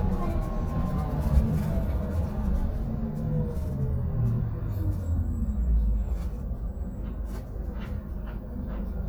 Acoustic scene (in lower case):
bus